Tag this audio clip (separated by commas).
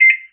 Domestic sounds, Microwave oven